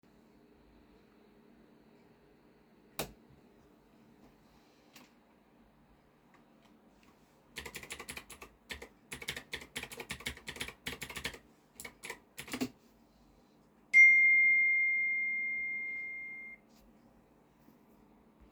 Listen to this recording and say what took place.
I flipped the light switch on in the office. I then sat down and started typing on the keyboard. During typing a phone notification rang nearby.